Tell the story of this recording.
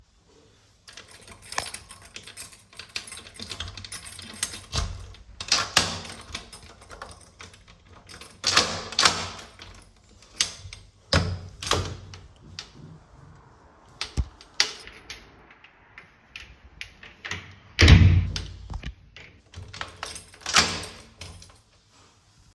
I am holding the phone while I take out my keys, which makes a jingling sound, and then I open and close the front door. After a few seconds, I open then shut the door then lock it.